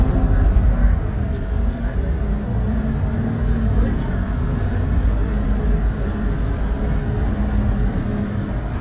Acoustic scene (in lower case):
bus